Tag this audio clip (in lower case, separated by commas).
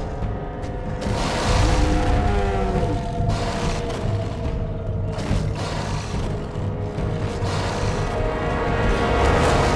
dinosaurs bellowing